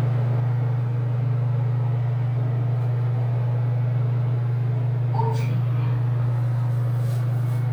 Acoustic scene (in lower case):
elevator